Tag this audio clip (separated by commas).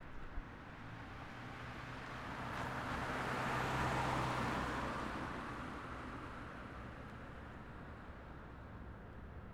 Motor vehicle (road), Car, Vehicle